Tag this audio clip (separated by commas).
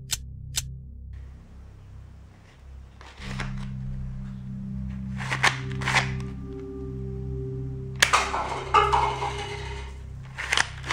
cap gun shooting